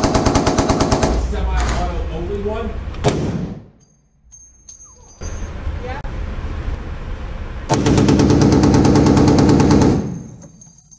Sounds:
machine gun shooting

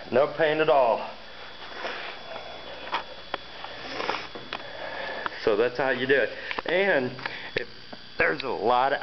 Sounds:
speech

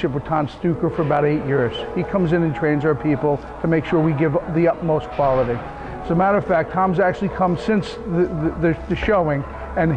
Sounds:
speech

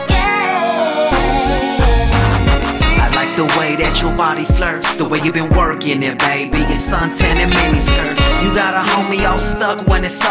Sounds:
music

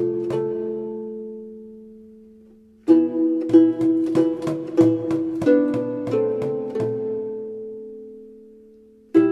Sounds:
music

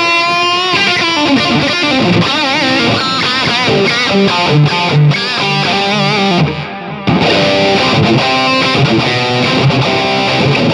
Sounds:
guitar, plucked string instrument, musical instrument, electric guitar, music

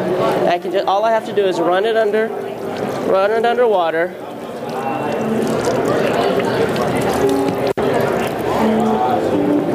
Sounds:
speech, music

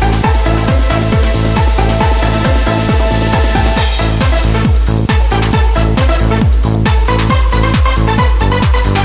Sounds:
music, techno, electronic music

